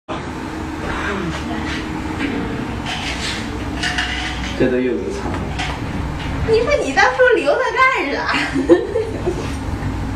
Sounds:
woman speaking, speech, laughter

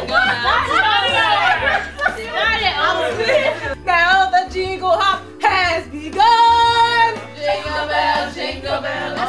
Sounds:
music, speech

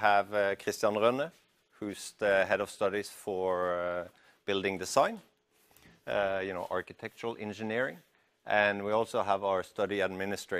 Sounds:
speech

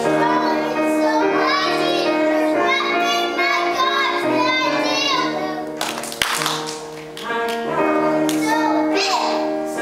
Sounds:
child singing, music, choir

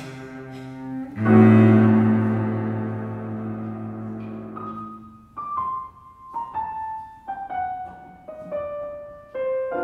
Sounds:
bowed string instrument, cello

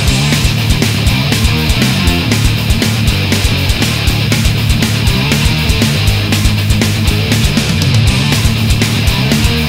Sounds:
rock music, music, angry music, heavy metal

